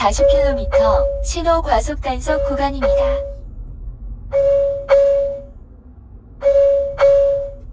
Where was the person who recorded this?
in a car